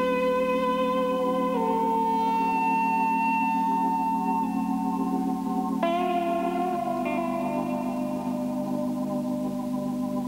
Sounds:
inside a large room or hall, music

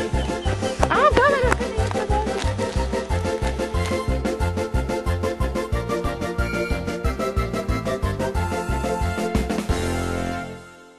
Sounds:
speech, music

